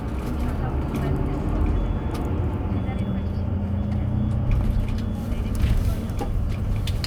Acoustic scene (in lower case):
bus